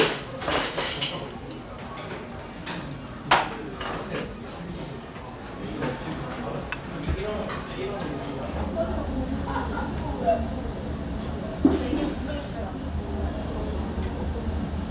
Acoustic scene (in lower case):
restaurant